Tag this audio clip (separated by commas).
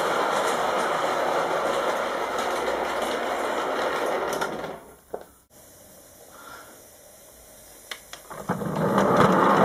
Train